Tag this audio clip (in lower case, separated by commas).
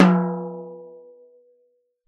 musical instrument, drum, percussion, music